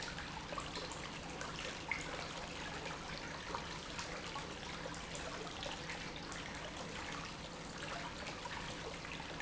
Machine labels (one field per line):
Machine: pump